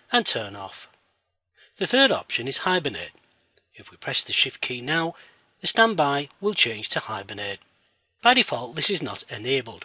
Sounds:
Speech

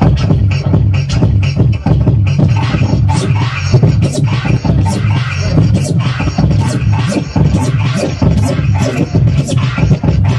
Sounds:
Music, Hip hop music, Scratching (performance technique), Electronic music, Beatboxing

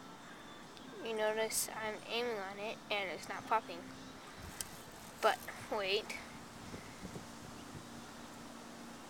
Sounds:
Speech

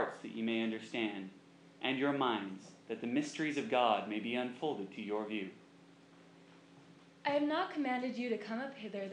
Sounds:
Male speech, Speech, Female speech, Narration

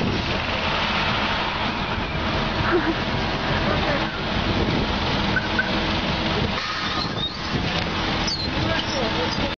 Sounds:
Speech

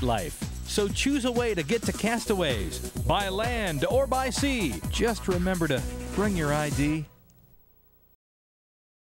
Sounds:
Music, Speech

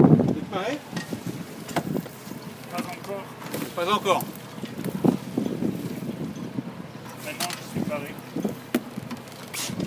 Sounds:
Speech

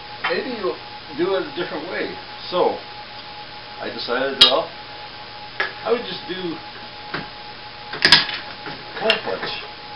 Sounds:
Speech, inside a large room or hall

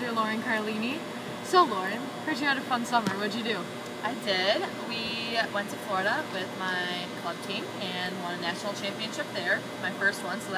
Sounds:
Speech

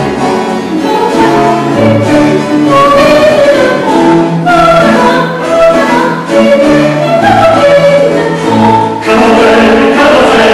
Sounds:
Vocal music, Singing, Choir, inside a large room or hall, Music

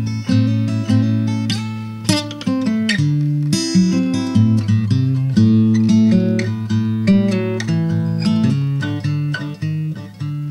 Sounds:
Acoustic guitar, Plucked string instrument, Musical instrument, Music

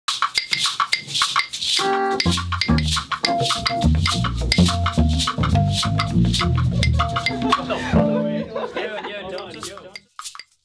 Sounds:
Music, Speech, inside a large room or hall

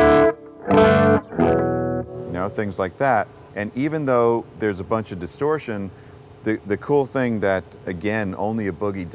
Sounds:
Guitar, Plucked string instrument, Musical instrument, Music, Speech

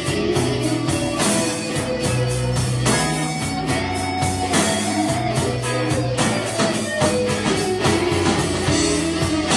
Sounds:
Music, Rock music, Drum, Guitar, Blues, Musical instrument, Plucked string instrument, Percussion, Music of Latin America

